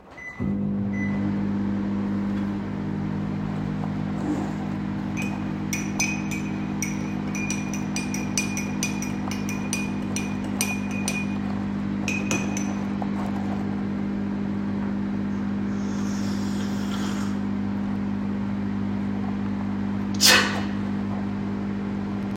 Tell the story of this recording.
I turned on the microwave. While the microwave was running, I stirred the tea with a spoon. I then took a sip of the tea and afterwards, I sneezed.